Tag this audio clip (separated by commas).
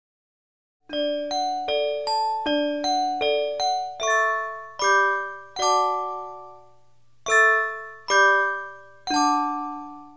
Glockenspiel, xylophone, Mallet percussion